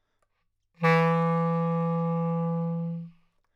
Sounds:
Wind instrument, Music, Musical instrument

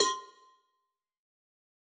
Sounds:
Bell, Cowbell

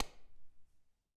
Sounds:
Hands, Clapping

